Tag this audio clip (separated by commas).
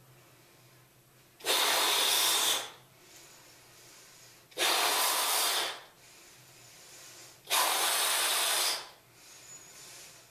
inside a small room